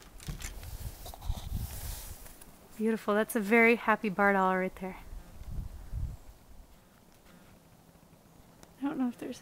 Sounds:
Speech

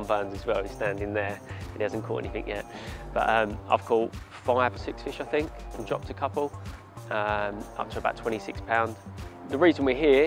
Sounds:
Speech, Music

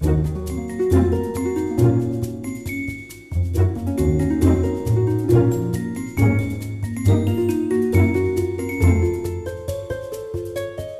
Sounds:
Soundtrack music, Music

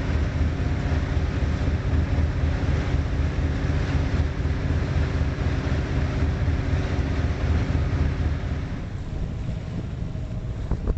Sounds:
Vehicle, Boat

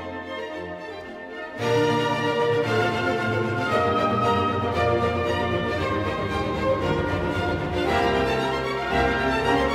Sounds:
Music

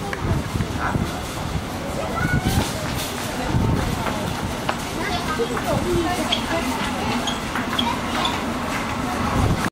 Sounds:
Speech, Music

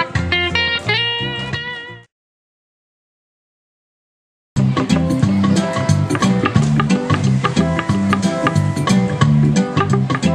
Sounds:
Plucked string instrument, Music, Musical instrument, Guitar

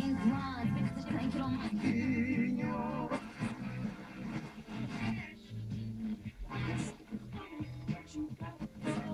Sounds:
Music

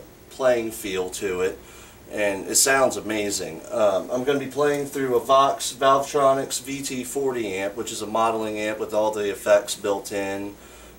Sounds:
Speech

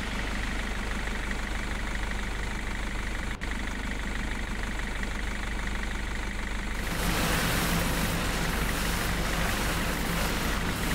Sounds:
Vehicle, outside, urban or man-made, Truck

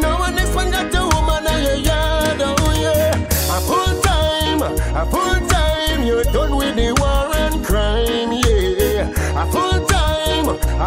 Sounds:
Reggae, Music

